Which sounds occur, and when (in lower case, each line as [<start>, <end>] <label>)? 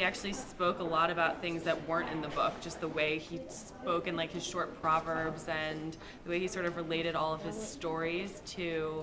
[0.00, 5.90] speech noise
[0.00, 5.93] woman speaking
[0.00, 9.02] background noise
[5.08, 5.33] generic impact sounds
[5.54, 5.72] generic impact sounds
[5.92, 6.20] breathing
[6.23, 9.02] speech noise
[6.25, 9.02] woman speaking
[6.49, 6.79] generic impact sounds